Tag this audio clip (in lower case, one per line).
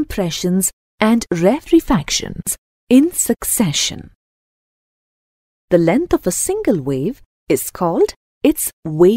speech